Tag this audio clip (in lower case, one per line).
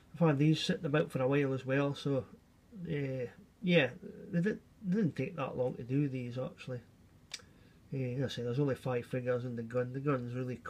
speech